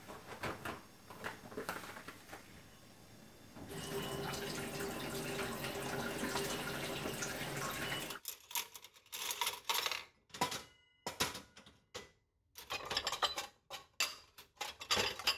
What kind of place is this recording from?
kitchen